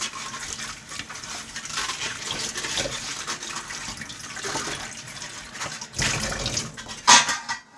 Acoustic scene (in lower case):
kitchen